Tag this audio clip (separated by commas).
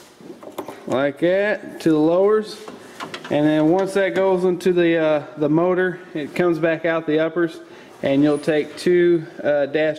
Speech